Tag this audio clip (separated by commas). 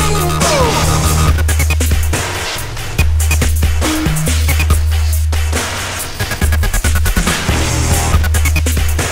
Sampler, Dubstep, Music, Electronic music, Electronica